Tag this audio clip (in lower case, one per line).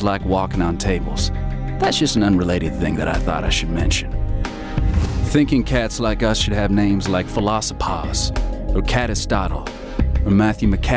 music
speech